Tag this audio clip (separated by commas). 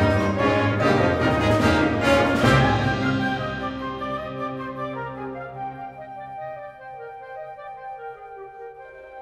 Music